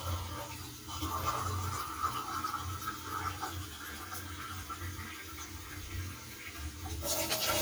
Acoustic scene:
kitchen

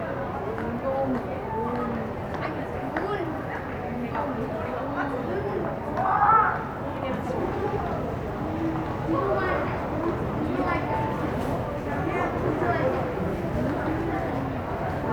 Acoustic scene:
crowded indoor space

